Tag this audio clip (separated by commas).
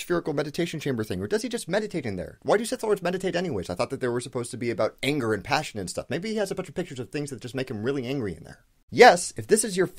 Speech